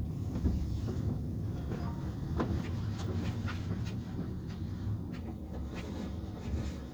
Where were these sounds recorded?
in a car